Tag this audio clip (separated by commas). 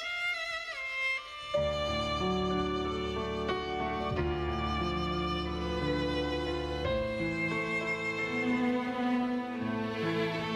Music, Tender music